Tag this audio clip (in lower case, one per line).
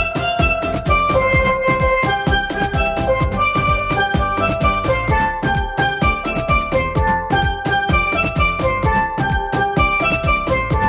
music